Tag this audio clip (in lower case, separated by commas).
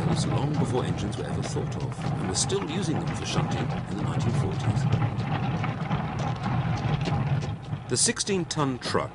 speech